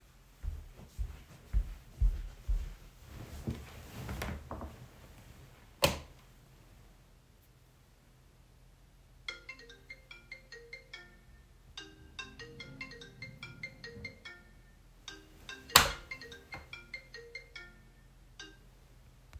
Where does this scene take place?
bedroom